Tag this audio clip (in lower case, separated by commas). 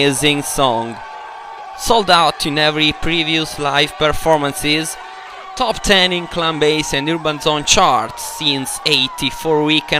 speech